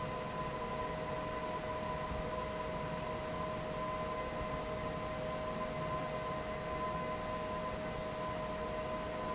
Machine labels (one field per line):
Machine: fan